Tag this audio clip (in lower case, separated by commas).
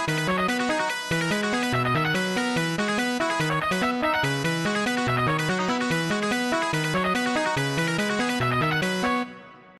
music